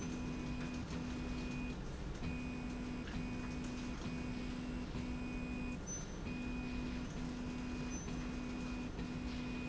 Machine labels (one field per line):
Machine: slide rail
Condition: normal